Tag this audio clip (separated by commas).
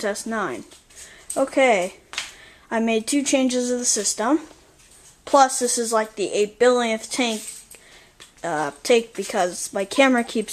Speech